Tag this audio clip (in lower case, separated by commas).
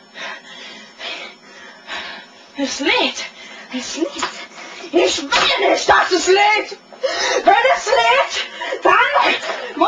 inside a small room, speech